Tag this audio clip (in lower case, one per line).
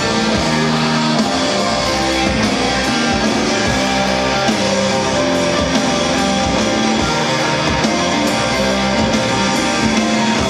music